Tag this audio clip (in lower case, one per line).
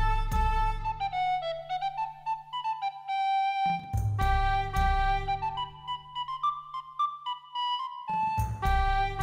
music